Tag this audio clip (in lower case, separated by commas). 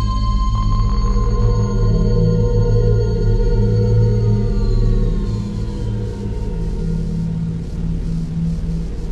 electronic music, ambient music, music